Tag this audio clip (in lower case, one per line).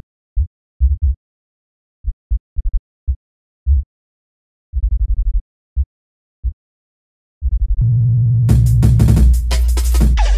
electronic music
music